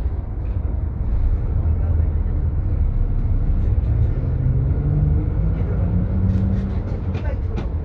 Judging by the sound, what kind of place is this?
bus